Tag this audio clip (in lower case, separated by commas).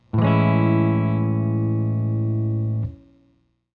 plucked string instrument, musical instrument, electric guitar, strum, guitar, music